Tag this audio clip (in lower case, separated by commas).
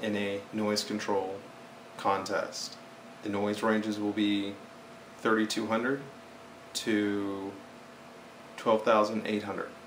speech